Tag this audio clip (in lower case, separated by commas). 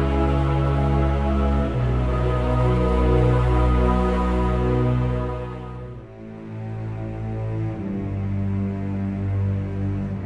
music, theme music